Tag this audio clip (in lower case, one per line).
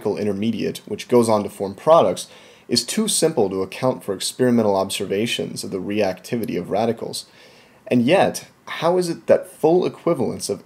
speech